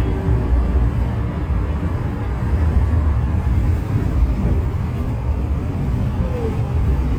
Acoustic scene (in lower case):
bus